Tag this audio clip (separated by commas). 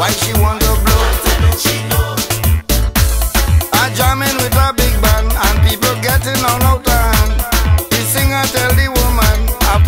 Afrobeat, Music